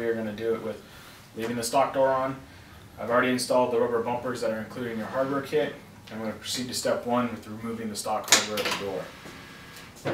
Man speaking and a door opens